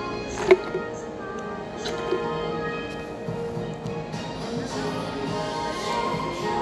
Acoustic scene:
cafe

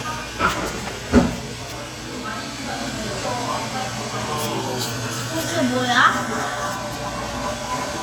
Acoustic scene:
cafe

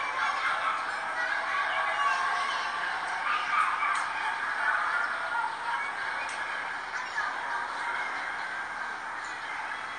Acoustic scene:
residential area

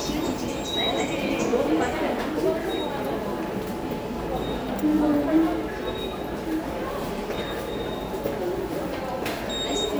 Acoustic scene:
subway station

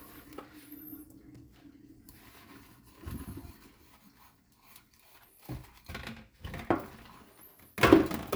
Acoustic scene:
kitchen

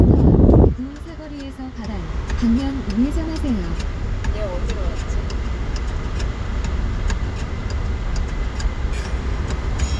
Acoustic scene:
car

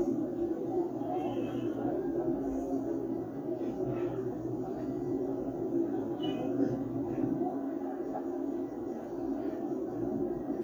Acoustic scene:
park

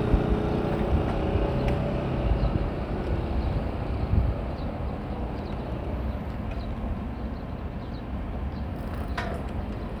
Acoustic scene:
residential area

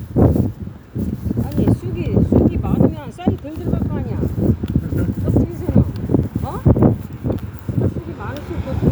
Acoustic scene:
residential area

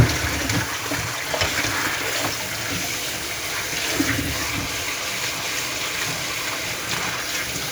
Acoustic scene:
kitchen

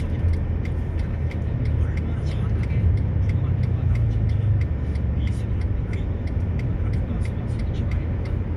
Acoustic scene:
car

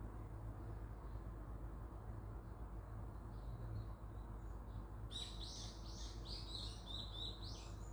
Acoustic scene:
park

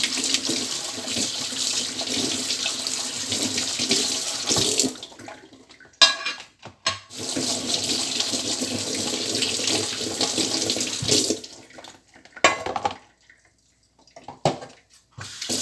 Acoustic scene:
kitchen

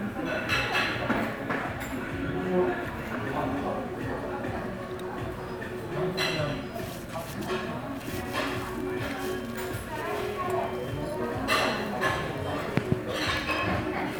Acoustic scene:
crowded indoor space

